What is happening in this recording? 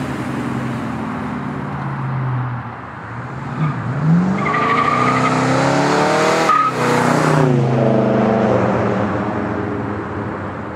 Car accelerating, vehicle squealing tires